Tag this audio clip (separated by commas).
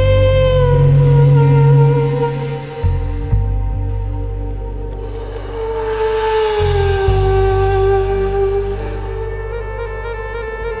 inside a large room or hall, Music